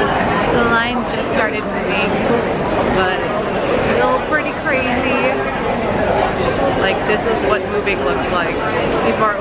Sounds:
speech

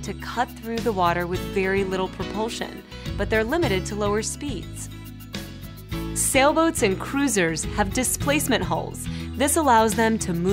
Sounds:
music, speech

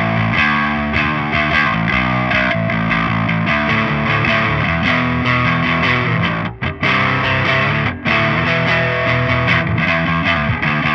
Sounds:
music, harmonic

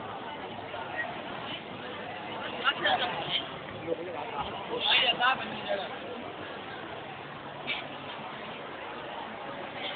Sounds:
speech

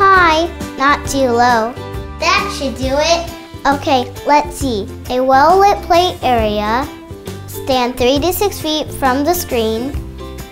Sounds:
speech, music

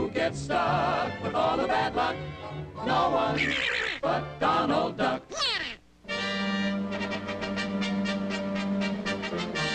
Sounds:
music, quack

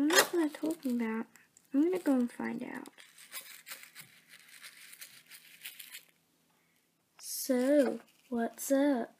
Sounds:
speech

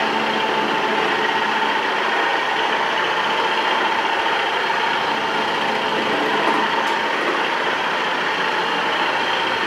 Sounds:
vacuum cleaner cleaning floors

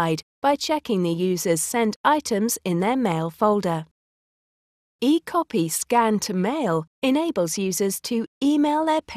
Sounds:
speech

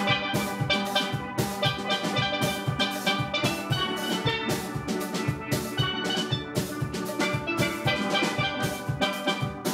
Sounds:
playing steelpan

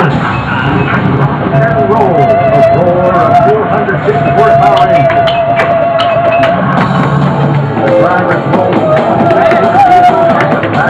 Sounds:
music, speech

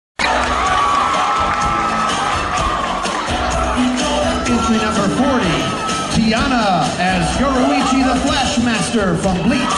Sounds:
crowd, cheering

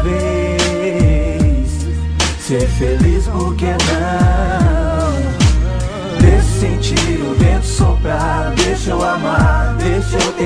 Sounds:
music, rhythm and blues

